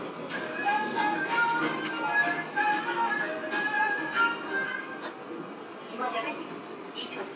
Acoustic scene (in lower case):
subway train